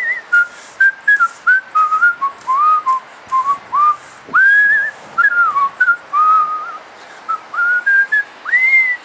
A whistling tune